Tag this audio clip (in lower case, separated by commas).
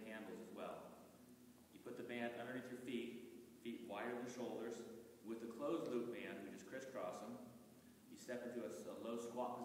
speech